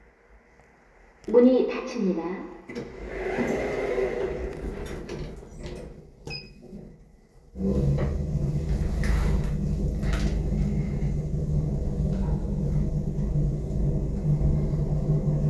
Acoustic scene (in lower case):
elevator